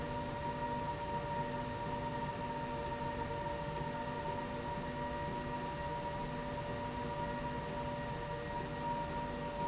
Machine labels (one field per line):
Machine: slide rail